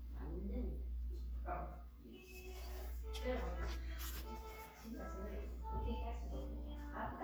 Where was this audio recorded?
in a crowded indoor space